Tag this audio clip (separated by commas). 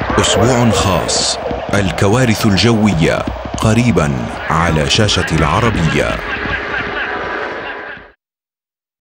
Speech